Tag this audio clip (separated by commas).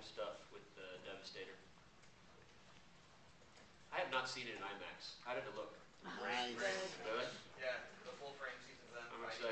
Speech